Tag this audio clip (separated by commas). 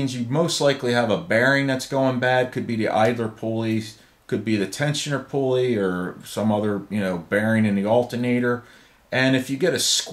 Speech